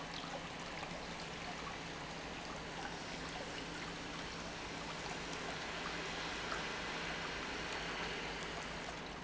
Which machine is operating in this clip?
pump